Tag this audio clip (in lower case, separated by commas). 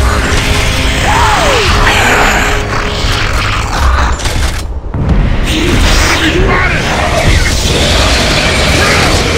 fusillade, speech